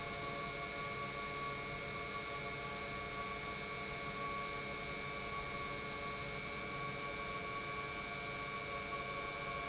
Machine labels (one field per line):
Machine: pump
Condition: normal